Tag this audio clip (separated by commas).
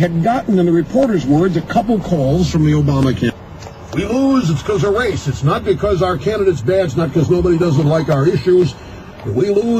Speech